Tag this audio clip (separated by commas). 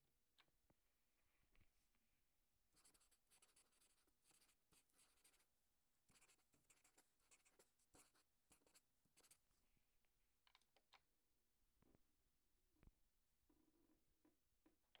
home sounds, Writing